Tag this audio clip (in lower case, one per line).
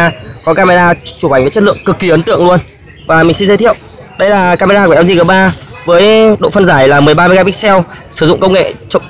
speech